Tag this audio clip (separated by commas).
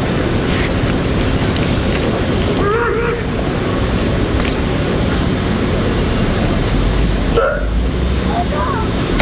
Speech